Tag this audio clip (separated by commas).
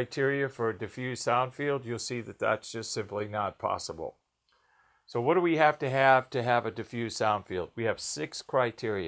Speech